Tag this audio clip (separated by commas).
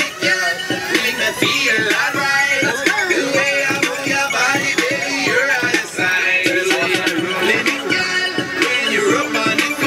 Soundtrack music, Music